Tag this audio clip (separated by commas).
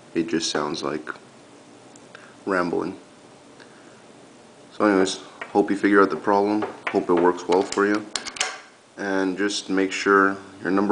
inside a small room, Speech